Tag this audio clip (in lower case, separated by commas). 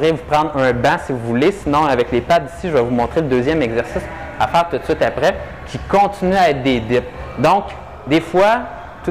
speech